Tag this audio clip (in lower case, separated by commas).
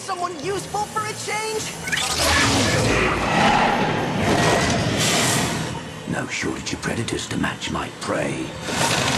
speech, music, inside a large room or hall